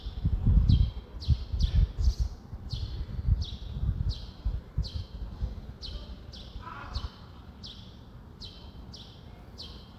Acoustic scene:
residential area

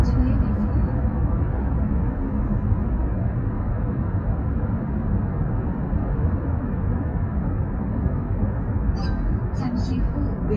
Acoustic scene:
car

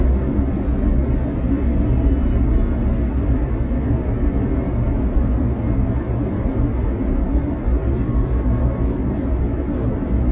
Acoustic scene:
car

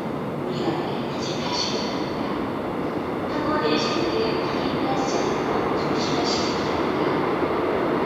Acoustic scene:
subway station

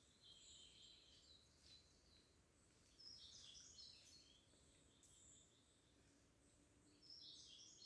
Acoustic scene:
park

